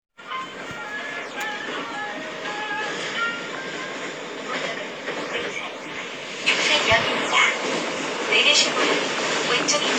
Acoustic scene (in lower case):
subway train